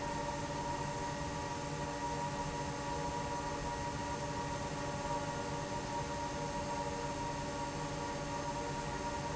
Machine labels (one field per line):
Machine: fan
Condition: normal